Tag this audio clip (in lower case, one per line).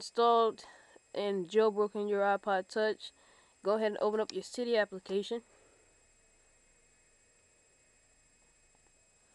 speech